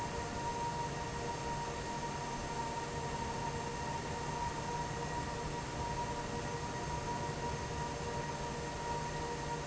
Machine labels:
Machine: fan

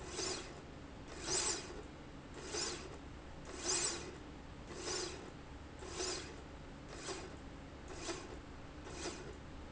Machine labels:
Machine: slide rail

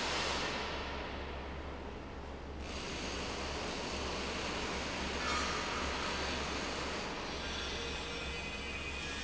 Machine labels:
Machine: fan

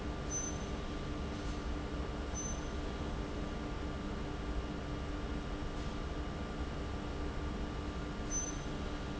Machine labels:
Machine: fan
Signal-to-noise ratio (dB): -6 dB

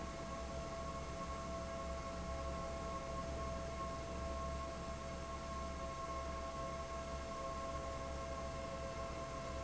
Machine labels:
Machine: fan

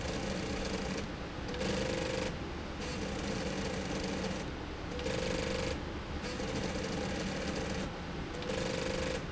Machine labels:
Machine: slide rail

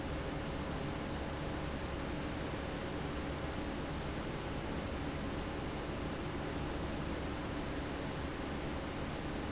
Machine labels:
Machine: fan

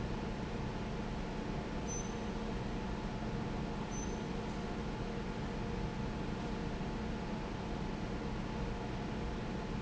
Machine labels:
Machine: fan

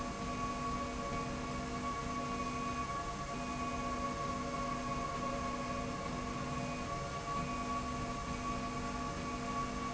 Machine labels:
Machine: slide rail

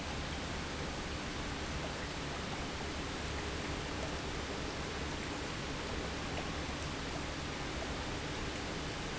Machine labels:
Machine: pump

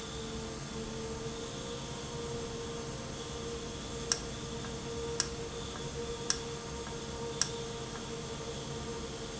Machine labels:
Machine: valve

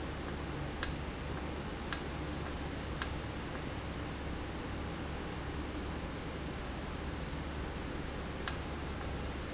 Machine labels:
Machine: valve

